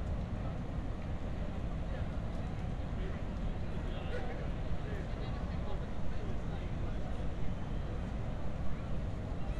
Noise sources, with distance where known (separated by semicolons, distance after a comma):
person or small group talking